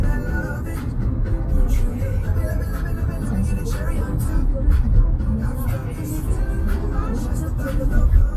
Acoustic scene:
car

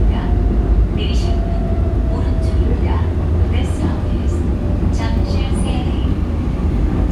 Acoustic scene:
subway train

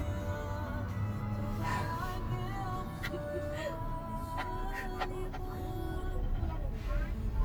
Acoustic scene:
car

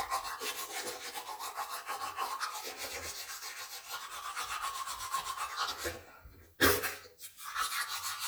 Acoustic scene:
restroom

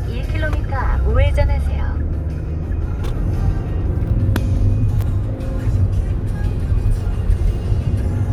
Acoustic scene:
car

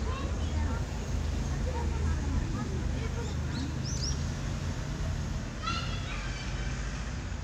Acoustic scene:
residential area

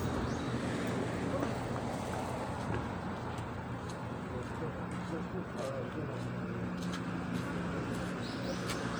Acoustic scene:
residential area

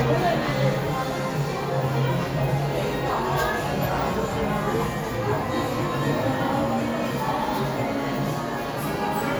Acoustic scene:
crowded indoor space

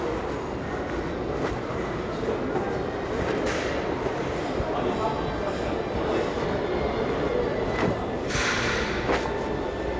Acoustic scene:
restaurant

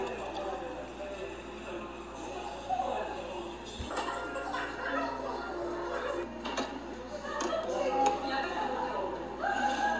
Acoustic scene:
cafe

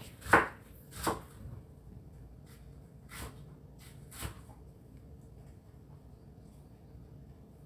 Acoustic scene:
kitchen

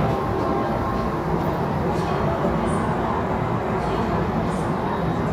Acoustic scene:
subway station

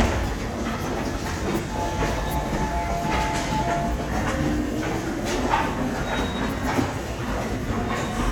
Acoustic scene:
subway station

